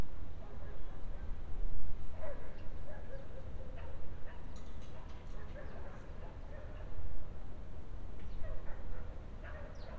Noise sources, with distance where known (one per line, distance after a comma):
dog barking or whining, far